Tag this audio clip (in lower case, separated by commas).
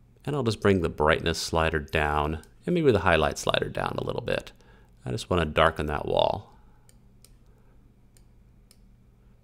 speech